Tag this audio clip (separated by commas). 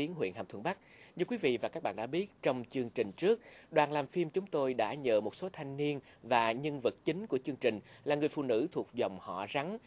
Speech, inside a small room